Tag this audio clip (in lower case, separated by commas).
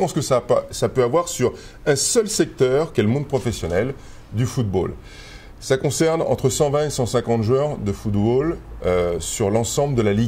speech